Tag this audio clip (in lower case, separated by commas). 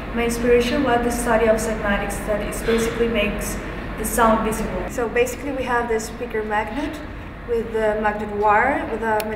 speech